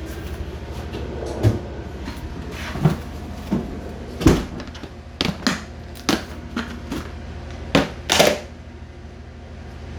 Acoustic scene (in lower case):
kitchen